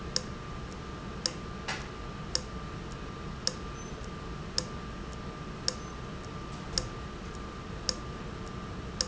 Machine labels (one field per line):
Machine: valve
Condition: abnormal